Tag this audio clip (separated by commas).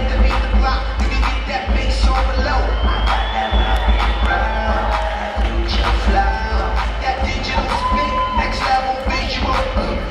Crowd, Cheering